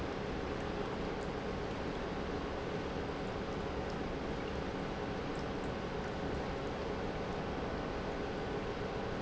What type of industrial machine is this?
pump